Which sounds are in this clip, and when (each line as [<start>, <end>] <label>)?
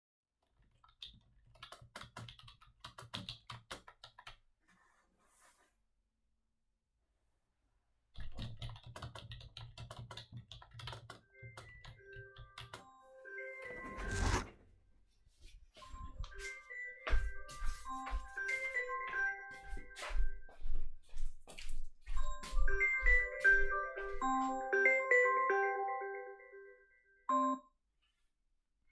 [0.90, 4.51] keyboard typing
[8.09, 13.14] keyboard typing
[11.30, 14.59] phone ringing
[15.77, 20.71] phone ringing
[16.99, 23.71] footsteps
[22.08, 27.64] phone ringing